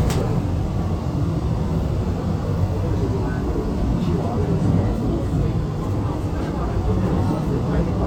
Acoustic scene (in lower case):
subway train